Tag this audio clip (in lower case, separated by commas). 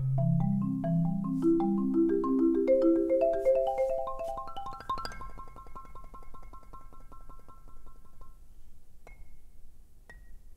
percussion, music